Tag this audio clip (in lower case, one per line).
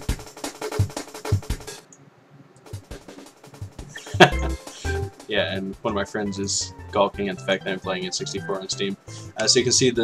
drum machine